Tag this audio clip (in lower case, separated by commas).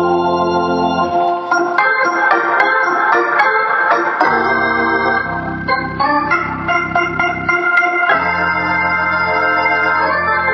musical instrument, music, keyboard (musical), electronic organ, hammond organ